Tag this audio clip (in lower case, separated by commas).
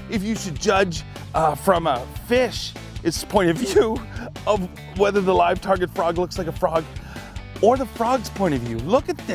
speech, music